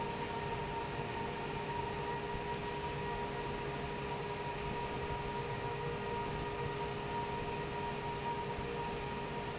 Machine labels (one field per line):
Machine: fan